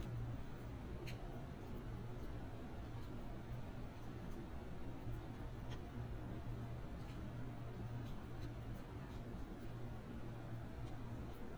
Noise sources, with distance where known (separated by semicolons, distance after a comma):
background noise